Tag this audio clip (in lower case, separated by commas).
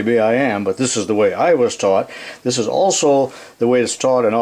speech